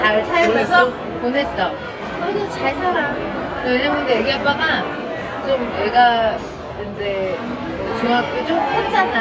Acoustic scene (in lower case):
crowded indoor space